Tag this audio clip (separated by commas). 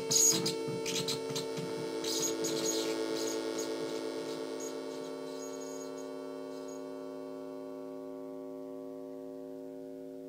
White noise